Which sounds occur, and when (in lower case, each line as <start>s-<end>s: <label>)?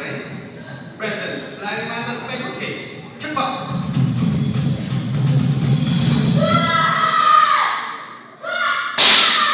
0.0s-0.2s: male speech
0.0s-9.5s: mechanisms
0.5s-2.9s: male speech
3.1s-3.7s: male speech
3.6s-6.5s: music
6.3s-9.5s: shout
6.6s-8.3s: speech
8.9s-9.5s: breaking